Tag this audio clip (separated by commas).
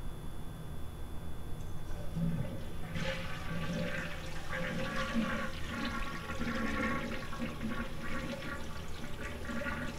Water